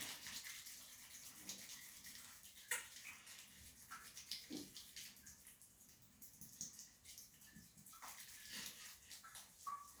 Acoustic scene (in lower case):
restroom